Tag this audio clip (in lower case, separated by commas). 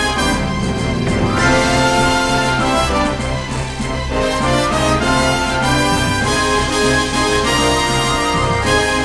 music